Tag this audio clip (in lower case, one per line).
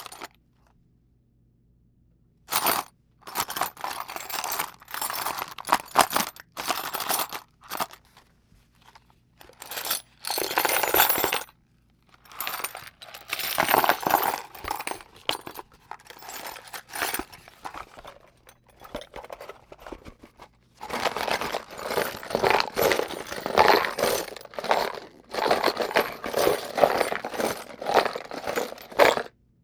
tools